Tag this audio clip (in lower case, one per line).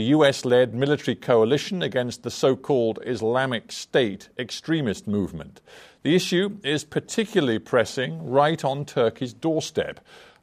speech